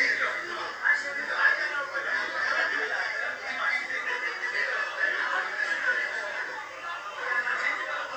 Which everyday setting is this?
crowded indoor space